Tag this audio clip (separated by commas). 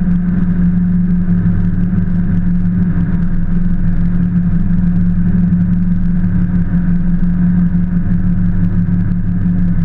Vehicle